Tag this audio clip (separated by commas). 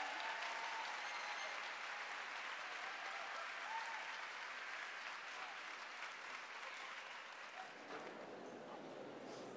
Music